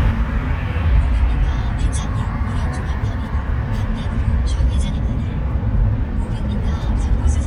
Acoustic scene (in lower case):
car